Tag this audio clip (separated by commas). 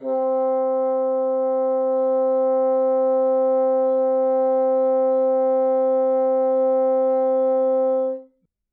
Music, Wind instrument, Musical instrument